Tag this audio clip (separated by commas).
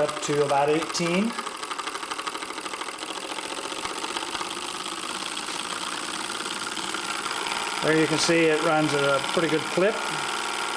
Engine, Speech